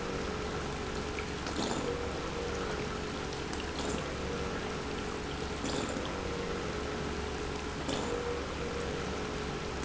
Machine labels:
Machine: pump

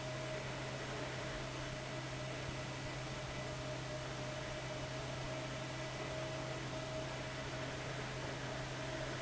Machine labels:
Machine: fan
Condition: abnormal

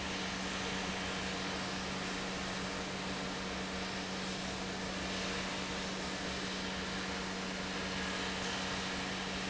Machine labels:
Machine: pump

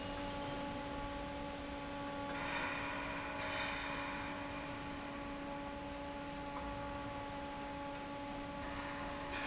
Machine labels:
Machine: fan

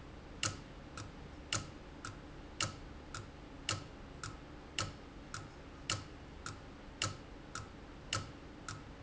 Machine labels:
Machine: valve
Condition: abnormal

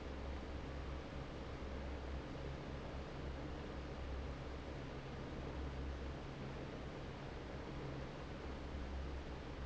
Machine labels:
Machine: fan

